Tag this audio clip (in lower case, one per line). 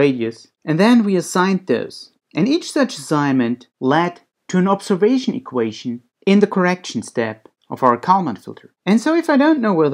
speech